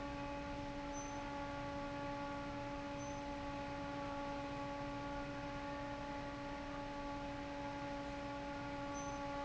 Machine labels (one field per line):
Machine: fan